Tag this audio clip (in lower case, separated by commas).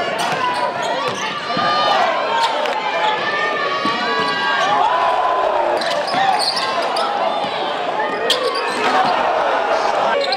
basketball bounce